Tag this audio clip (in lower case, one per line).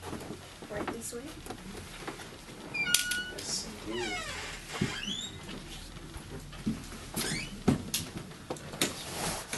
speech